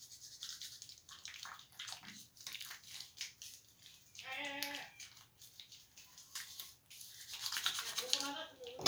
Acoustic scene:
restroom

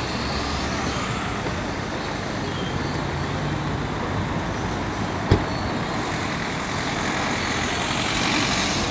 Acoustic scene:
street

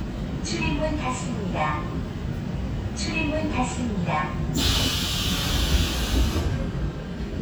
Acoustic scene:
subway train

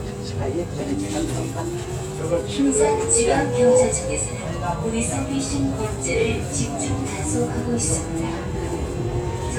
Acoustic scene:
subway train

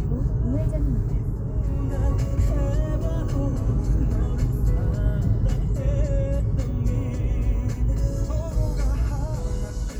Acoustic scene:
car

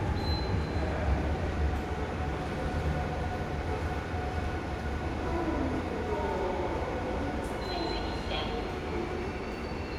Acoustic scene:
subway station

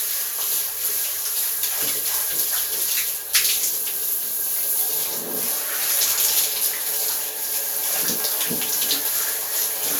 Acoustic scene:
restroom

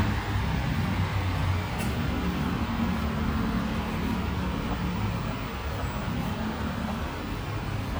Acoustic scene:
street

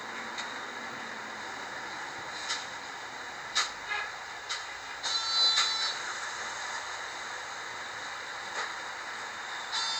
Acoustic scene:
bus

